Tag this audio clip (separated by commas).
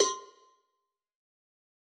Cowbell, Bell